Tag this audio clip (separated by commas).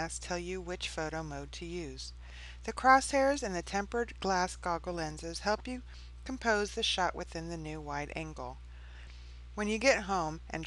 Speech